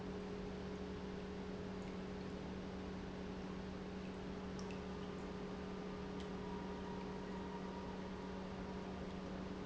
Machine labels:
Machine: pump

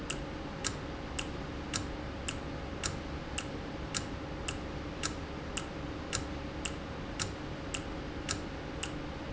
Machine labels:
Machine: valve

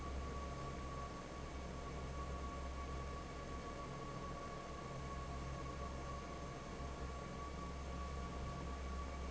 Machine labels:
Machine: fan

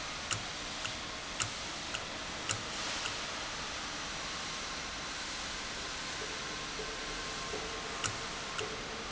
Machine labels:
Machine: valve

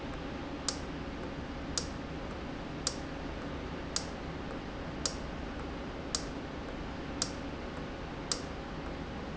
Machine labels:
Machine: valve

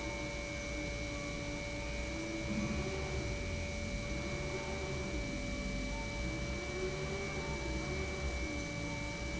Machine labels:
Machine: pump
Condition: normal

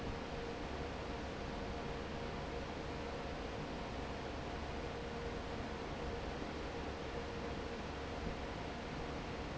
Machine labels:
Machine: fan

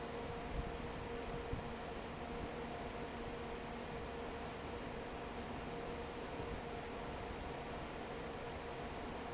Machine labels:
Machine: fan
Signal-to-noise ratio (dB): 6 dB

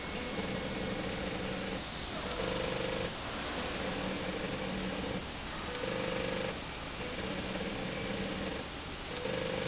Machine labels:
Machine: slide rail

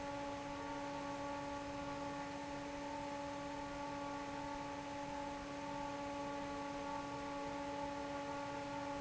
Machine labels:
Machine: fan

